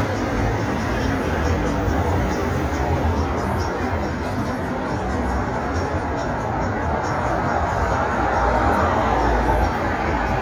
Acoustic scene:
street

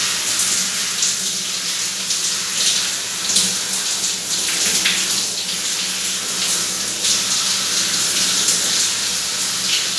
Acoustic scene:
restroom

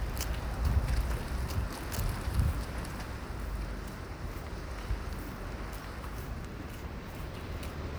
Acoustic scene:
residential area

